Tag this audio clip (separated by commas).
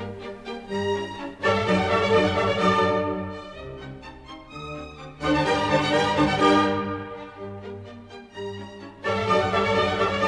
Classical music, Music